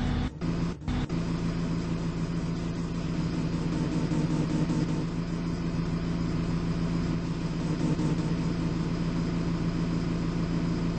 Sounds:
Bus, Vehicle

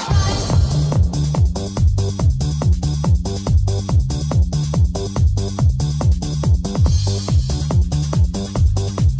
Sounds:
Music, Techno

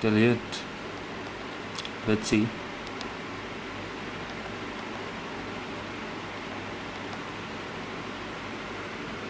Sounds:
Pink noise

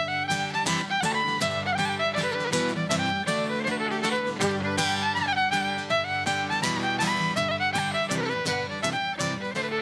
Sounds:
Music

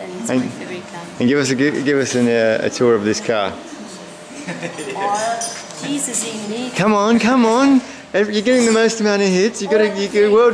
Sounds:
Speech

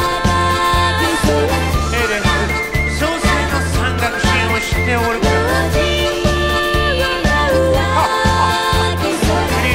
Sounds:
Music

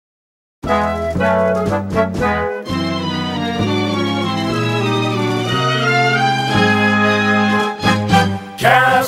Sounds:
Music

